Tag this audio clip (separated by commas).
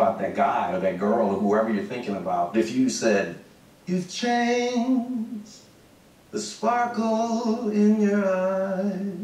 Singing